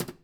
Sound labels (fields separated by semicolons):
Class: cupboard; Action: closing; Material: wooden